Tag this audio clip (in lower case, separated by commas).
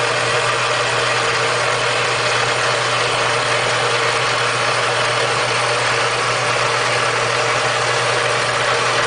engine, idling